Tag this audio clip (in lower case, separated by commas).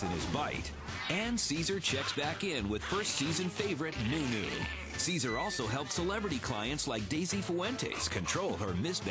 yip, bow-wow, domestic animals, music, dog, speech, whimper (dog), animal